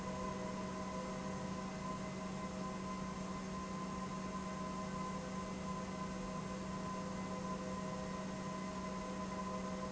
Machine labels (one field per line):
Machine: pump